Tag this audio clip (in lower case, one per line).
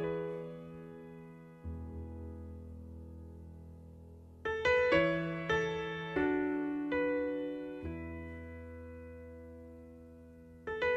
music